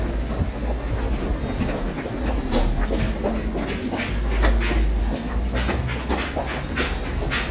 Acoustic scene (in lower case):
subway station